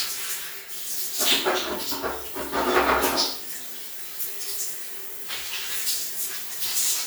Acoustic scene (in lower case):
restroom